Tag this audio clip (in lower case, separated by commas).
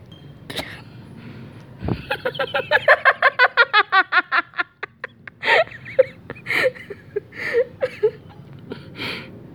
human voice, laughter